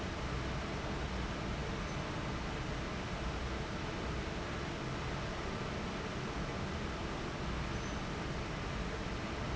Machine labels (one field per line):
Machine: fan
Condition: abnormal